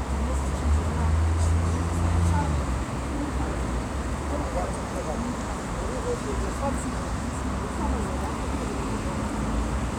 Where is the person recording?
on a street